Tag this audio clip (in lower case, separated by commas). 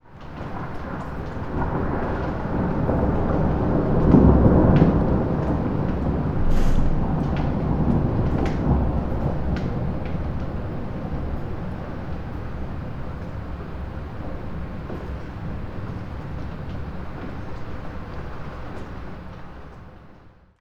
thunderstorm, thunder